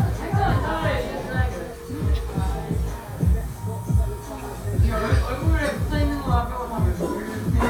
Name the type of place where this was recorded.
cafe